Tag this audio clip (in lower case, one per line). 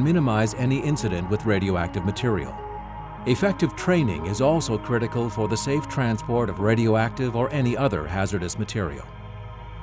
music
speech